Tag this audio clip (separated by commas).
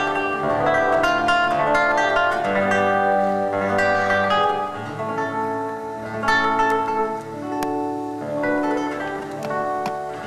Plucked string instrument, Guitar, Musical instrument, Music